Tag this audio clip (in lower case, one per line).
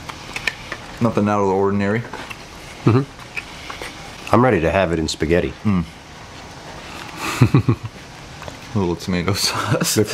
inside a large room or hall
speech
inside a small room